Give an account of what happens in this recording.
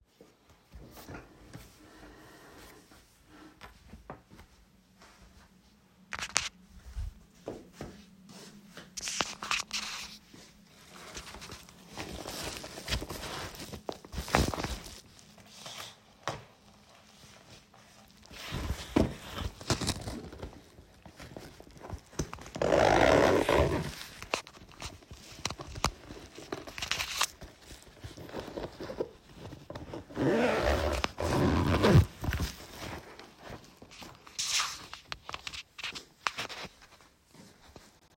I walked across the living room toward my backpack. I opened it, placed my wallet inside and closed it again.